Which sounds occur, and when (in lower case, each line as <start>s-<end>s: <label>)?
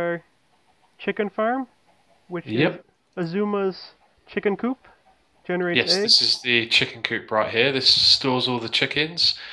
0.0s-0.1s: man speaking
0.0s-9.5s: background noise
0.0s-9.5s: conversation
0.4s-0.8s: cluck
0.9s-1.6s: man speaking
1.6s-2.2s: cluck
2.3s-2.8s: man speaking
3.1s-3.9s: man speaking
3.8s-4.2s: cluck
4.2s-4.9s: man speaking
4.8s-5.4s: cluck
5.4s-9.3s: man speaking
6.0s-6.4s: cluck
9.3s-9.5s: breathing